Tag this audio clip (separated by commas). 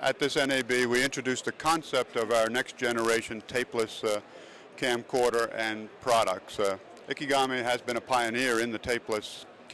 Speech